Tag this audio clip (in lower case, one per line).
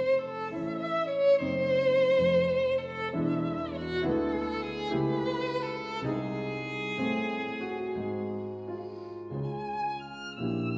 violin
musical instrument
music